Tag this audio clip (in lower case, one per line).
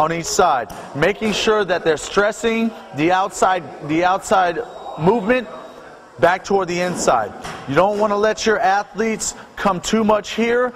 speech